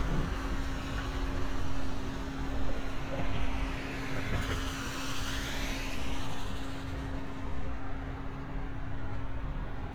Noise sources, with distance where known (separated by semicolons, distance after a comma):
engine of unclear size, near